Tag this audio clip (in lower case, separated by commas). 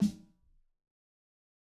snare drum, music, musical instrument, drum, percussion